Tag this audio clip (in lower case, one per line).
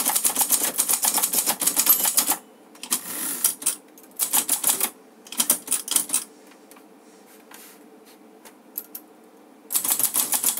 typing on typewriter